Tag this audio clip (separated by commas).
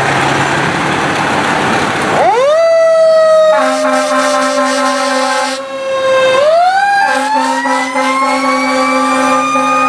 Siren, fire truck (siren), Emergency vehicle